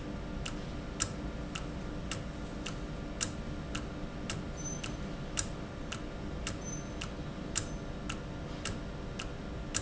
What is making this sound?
valve